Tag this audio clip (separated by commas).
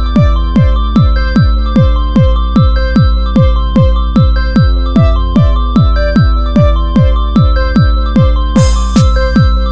Music, Techno